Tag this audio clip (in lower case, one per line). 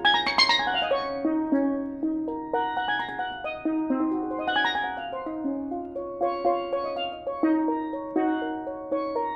playing steelpan